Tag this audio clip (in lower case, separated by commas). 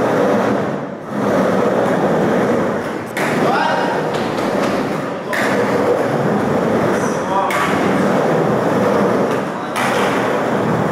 skateboarding, skateboard